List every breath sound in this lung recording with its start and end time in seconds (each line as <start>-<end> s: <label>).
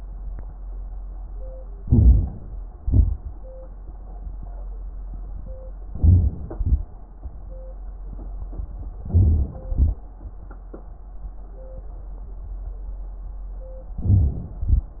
1.81-2.43 s: inhalation
1.81-2.43 s: crackles
2.82-3.33 s: exhalation
5.92-6.34 s: inhalation
5.92-6.34 s: crackles
6.50-6.88 s: exhalation
9.07-9.54 s: inhalation
9.07-9.54 s: crackles
9.67-10.04 s: exhalation
14.01-14.60 s: inhalation
14.67-14.93 s: exhalation